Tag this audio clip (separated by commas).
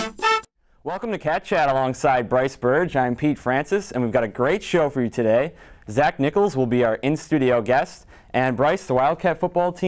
Music, Speech